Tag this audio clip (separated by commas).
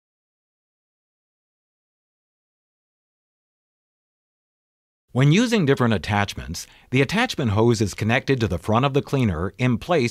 Speech